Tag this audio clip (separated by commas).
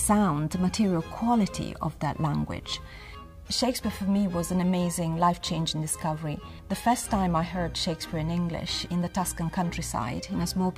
Speech, Music